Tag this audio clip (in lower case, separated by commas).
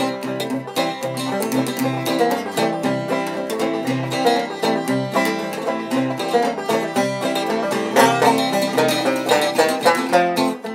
bluegrass, playing banjo, banjo, plucked string instrument, musical instrument, music, country, acoustic guitar, guitar